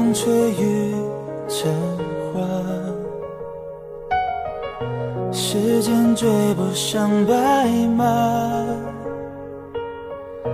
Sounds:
Music

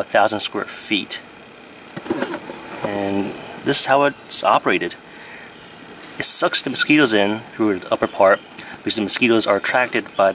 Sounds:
Speech

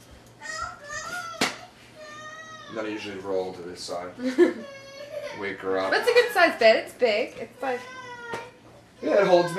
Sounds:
inside a small room, Speech

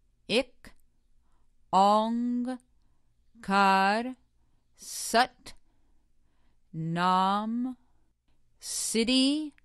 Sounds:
Speech, Mantra

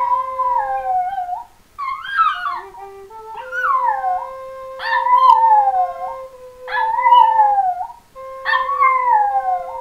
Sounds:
Musical instrument, Flute, Music, Dog, Wind instrument, Animal

